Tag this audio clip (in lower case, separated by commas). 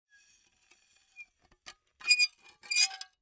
squeak